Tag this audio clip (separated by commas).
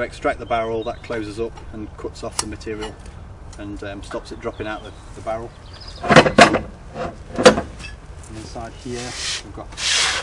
Speech